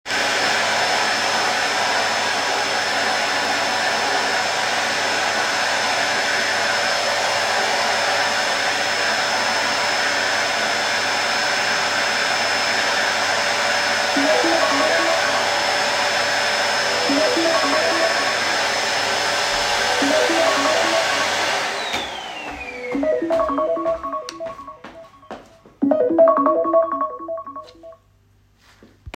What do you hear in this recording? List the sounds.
vacuum cleaner, phone ringing, footsteps